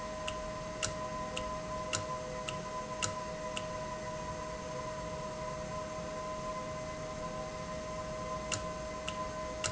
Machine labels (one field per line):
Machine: valve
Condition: normal